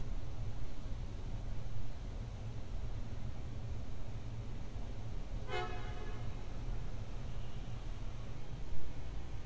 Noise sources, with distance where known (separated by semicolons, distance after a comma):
car horn, near